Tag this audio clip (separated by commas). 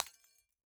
Glass, Shatter